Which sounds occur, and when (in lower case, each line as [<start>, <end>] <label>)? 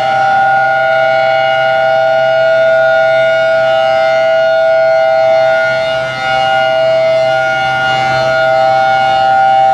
[0.00, 9.73] civil defense siren